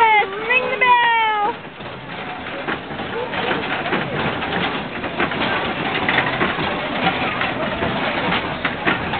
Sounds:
Speech

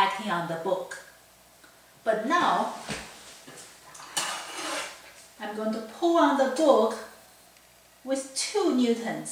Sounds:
Speech

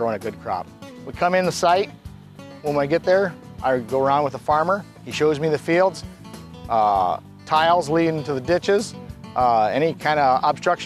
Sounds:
Music, Speech

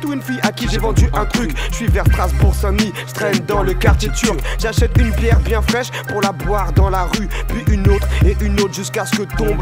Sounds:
Music

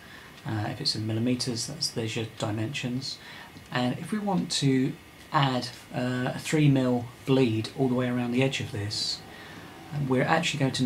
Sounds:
Speech

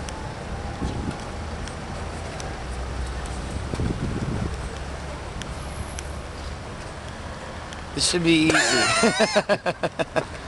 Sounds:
Speech

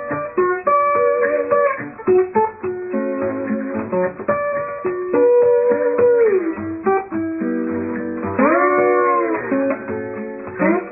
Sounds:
playing steel guitar

